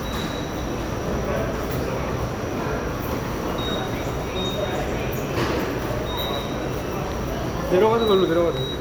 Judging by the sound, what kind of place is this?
subway station